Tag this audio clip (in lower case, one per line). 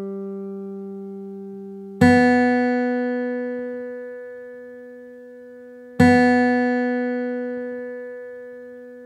music